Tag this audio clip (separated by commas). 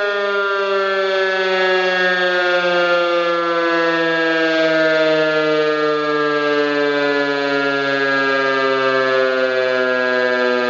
civil defense siren